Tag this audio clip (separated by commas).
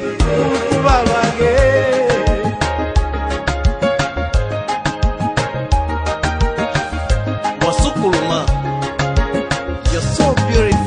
Music, Singing, Music of Africa